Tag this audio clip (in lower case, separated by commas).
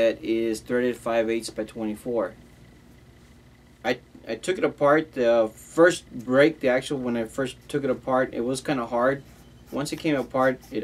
speech